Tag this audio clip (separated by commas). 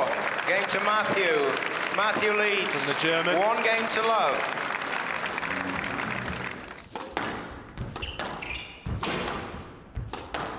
playing squash